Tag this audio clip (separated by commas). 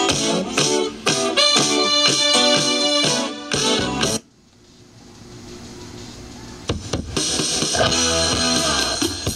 Soundtrack music, Jazz, Music